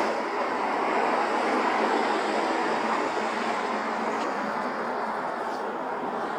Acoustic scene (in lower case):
street